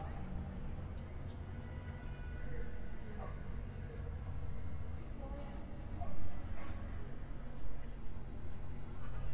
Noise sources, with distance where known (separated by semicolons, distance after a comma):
car horn, far; person or small group talking, far; dog barking or whining, far